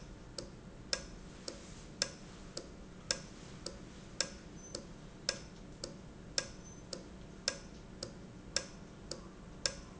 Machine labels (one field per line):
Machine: valve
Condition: normal